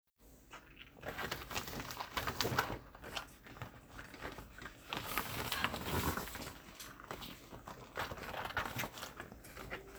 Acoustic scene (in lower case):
kitchen